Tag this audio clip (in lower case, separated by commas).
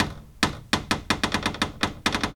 cupboard open or close, door, home sounds